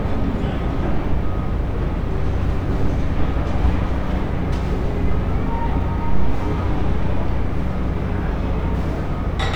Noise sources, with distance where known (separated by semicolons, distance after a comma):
engine of unclear size; unidentified impact machinery, near; reverse beeper